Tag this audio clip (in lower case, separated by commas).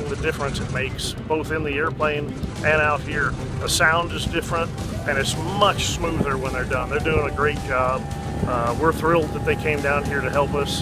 speech, aircraft, airscrew, vehicle, music